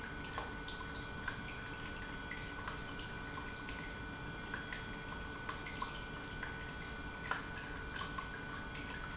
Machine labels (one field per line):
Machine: pump